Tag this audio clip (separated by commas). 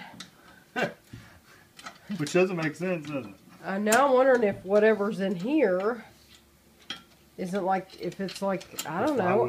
inside a small room, Speech